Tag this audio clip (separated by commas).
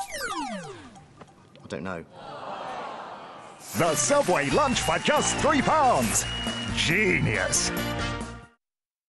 Music, Speech